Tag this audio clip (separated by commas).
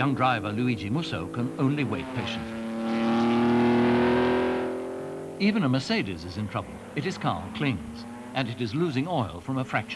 Car passing by